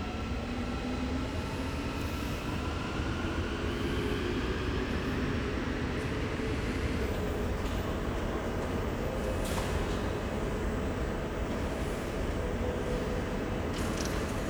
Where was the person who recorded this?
in a subway station